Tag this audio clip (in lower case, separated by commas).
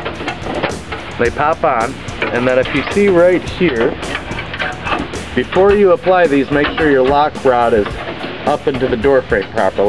door, speech, music